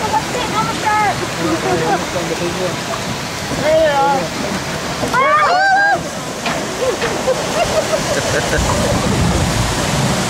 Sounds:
water

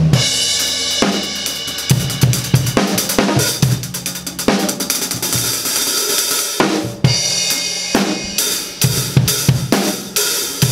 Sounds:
musical instrument, music

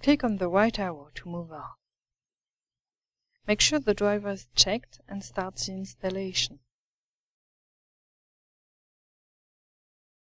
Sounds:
speech

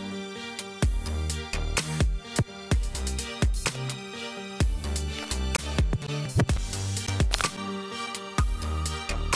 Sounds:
music

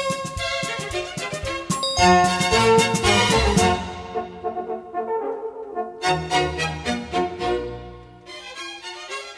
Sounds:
french horn, music

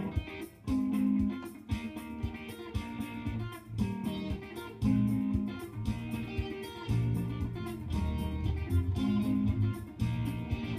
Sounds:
plucked string instrument, jazz, acoustic guitar, strum, guitar, music, musical instrument

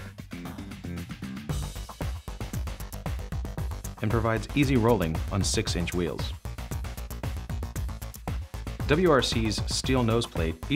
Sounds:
music, speech

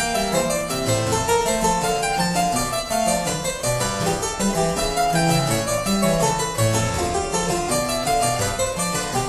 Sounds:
piano, music, keyboard (musical), harpsichord, musical instrument

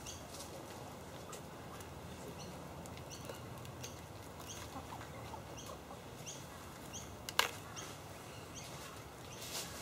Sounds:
animal

